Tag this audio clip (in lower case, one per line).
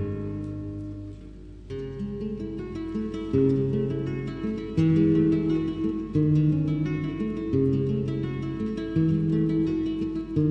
plucked string instrument
music
flamenco
guitar
musical instrument